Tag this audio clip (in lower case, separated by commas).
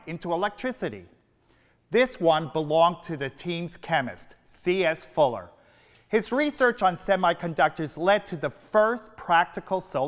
speech